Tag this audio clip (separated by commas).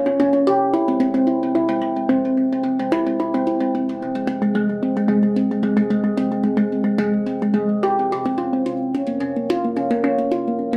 Harmonic, Music